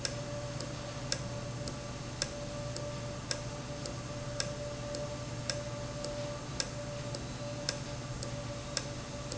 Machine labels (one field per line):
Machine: valve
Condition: normal